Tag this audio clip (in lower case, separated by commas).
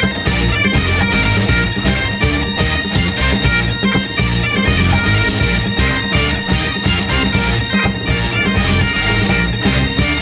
playing bagpipes